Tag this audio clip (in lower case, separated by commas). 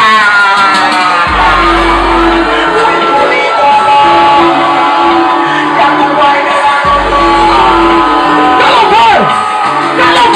music